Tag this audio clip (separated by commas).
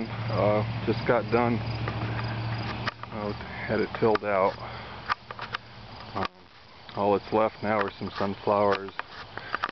Speech